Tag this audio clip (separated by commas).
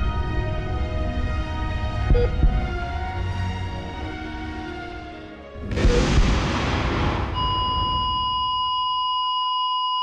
Music